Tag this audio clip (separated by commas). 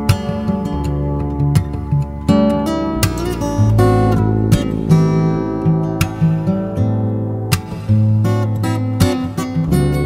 Music